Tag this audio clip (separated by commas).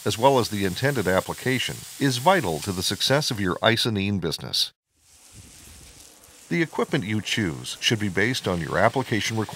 Speech, Spray